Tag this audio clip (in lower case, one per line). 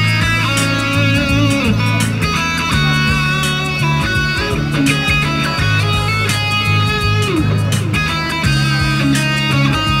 music
guitar
musical instrument
plucked string instrument
electric guitar
strum